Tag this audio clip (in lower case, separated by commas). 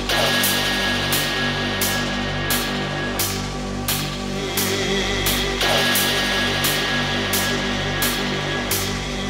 music